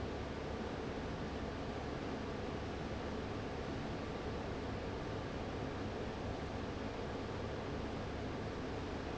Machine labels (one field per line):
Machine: fan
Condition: abnormal